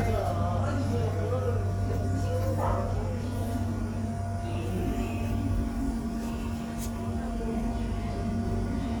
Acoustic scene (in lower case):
subway station